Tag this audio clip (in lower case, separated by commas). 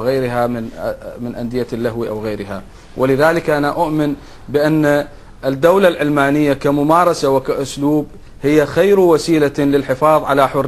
speech